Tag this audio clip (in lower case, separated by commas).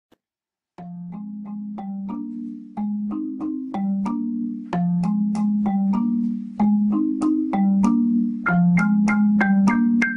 music, vibraphone, percussion